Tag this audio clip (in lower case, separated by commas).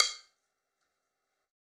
music, musical instrument, drum kit, percussion